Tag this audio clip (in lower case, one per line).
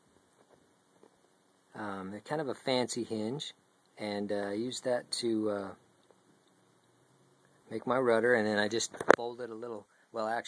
speech